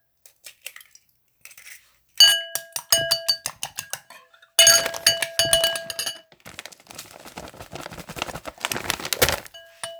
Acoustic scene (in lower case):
kitchen